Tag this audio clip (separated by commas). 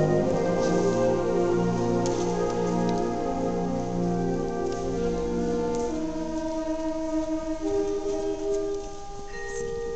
Orchestra